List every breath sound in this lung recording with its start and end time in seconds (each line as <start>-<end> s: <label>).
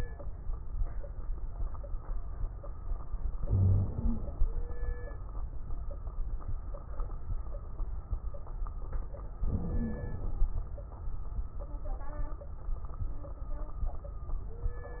3.42-3.90 s: wheeze
3.42-4.45 s: inhalation
3.91-4.36 s: wheeze
9.40-10.51 s: inhalation
9.51-10.36 s: wheeze